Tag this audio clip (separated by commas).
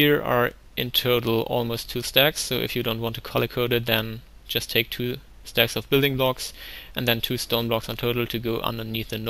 Speech